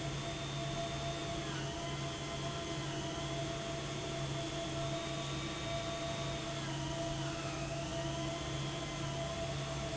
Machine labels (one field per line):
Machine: pump